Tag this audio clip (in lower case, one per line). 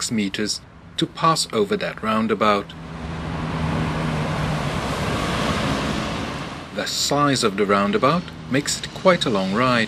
speech
bicycle
vehicle